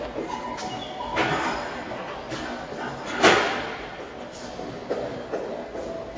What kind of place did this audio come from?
subway station